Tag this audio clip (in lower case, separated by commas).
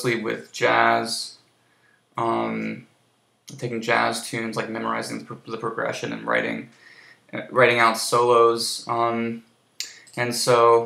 speech